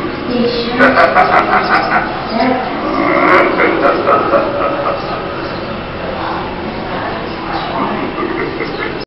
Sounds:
snicker, speech

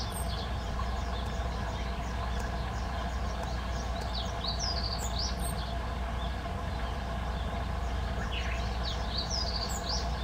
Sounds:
bird

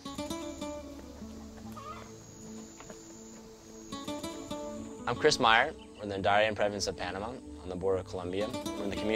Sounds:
speech, music

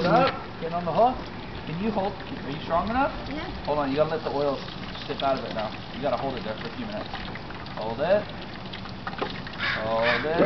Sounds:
bird, speech

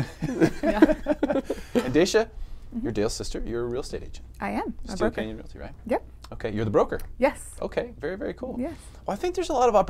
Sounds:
speech

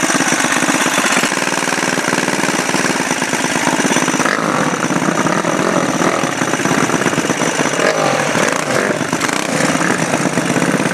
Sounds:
driving motorcycle, outside, urban or man-made, vehicle, motorcycle

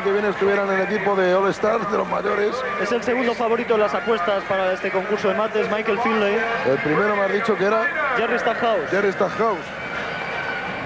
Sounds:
speech

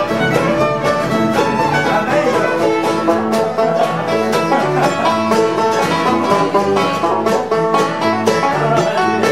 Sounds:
music, banjo, bluegrass, mandolin

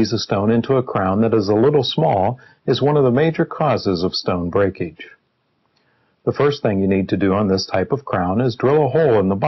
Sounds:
speech

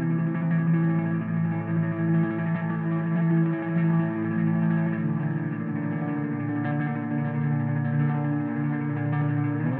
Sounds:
music

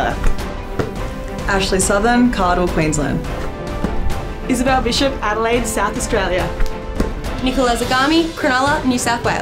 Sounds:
speech, music

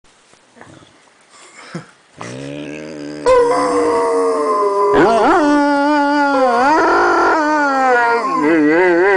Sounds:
domestic animals, animal, dog

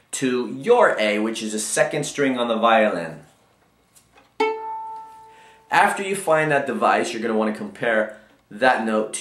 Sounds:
musical instrument, speech, fiddle

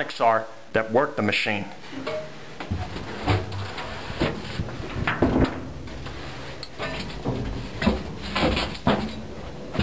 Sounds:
inside a small room, speech

